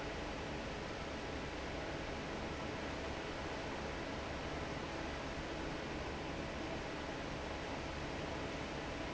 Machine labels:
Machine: fan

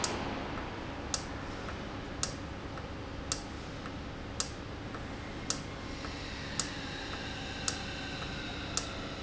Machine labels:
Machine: valve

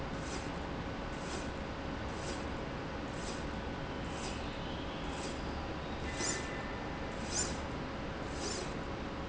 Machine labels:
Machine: slide rail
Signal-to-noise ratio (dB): -6 dB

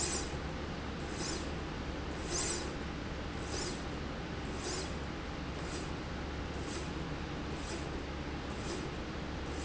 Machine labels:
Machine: slide rail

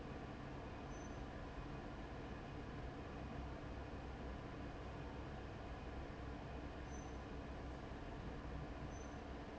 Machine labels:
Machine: fan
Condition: abnormal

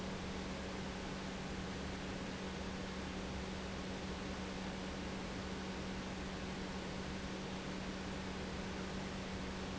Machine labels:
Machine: pump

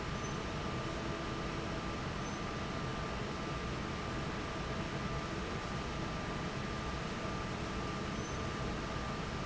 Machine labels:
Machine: fan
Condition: normal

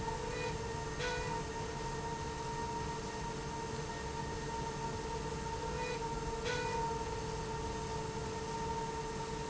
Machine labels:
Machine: slide rail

